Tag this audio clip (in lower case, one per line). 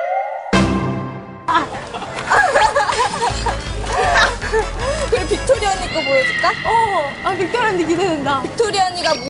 meow
music
speech